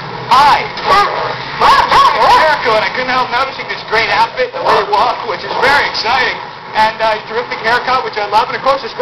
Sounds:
Dog

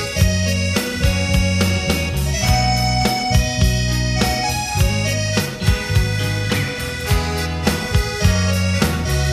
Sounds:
Music

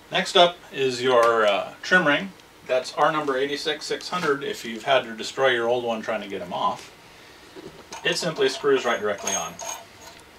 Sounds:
Speech

